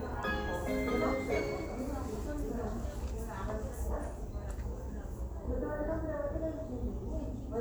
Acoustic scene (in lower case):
crowded indoor space